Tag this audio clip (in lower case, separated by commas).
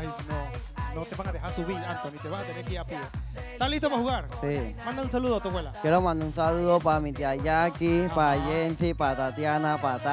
speech, music